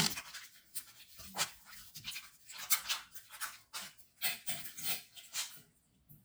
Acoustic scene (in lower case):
restroom